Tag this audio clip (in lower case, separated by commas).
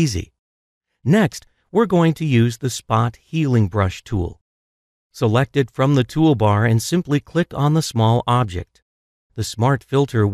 speech, inside a small room